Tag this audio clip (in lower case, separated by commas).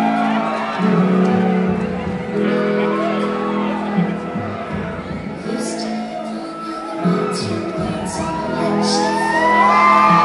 music, singing, inside a large room or hall